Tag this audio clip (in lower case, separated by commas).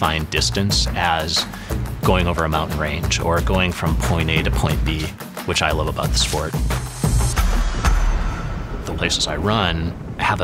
outside, rural or natural, music, speech